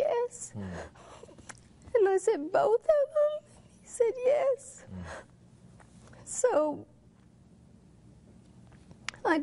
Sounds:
female speech

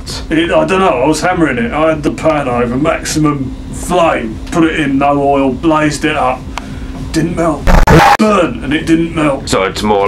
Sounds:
speech

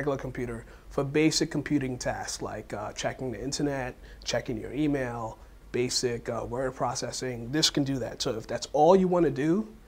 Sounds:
speech

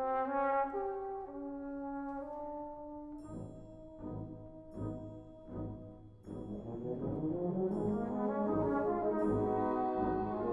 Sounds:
playing trombone, trombone, brass instrument

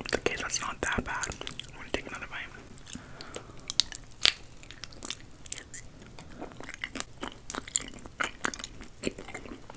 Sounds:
people eating apple

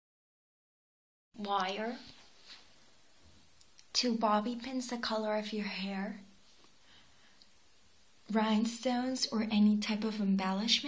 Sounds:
speech

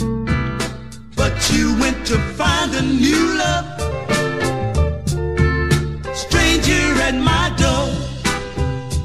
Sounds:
music

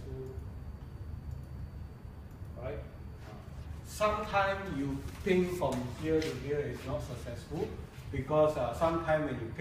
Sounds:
speech

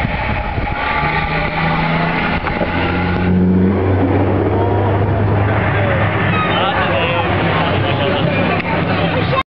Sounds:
speech, truck, vehicle

